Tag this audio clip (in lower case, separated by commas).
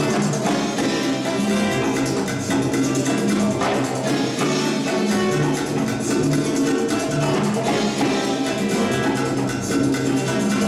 playing guiro